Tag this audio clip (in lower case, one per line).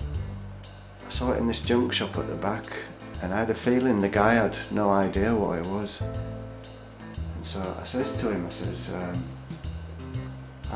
speech
music